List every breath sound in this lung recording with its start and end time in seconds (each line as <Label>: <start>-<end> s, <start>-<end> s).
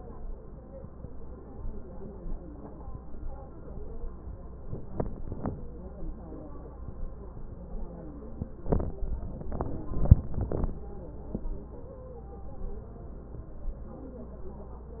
Wheeze: 13.89-14.71 s